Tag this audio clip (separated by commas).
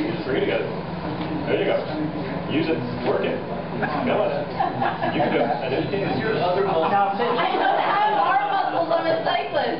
Speech